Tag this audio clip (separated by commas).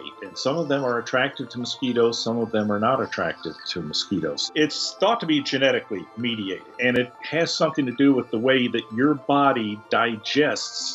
mosquito buzzing